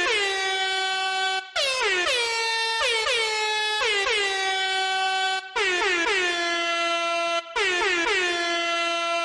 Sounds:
air horn

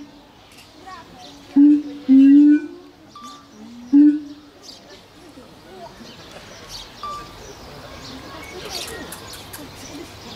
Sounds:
gibbon howling

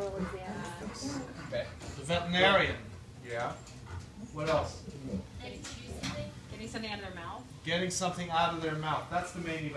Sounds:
speech

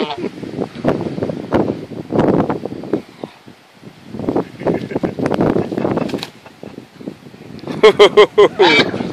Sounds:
honk

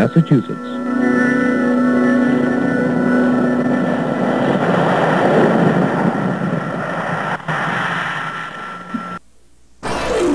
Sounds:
speech
music

